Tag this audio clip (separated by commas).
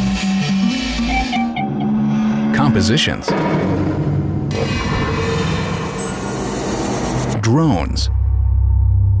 Sound effect